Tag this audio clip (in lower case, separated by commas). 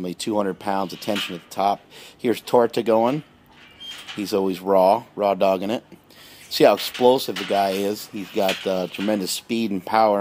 speech